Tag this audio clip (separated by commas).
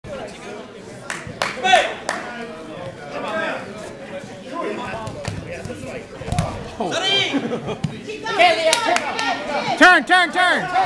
Speech